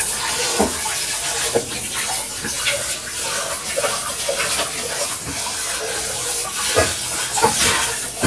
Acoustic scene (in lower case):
kitchen